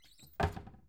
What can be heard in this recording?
wooden cupboard closing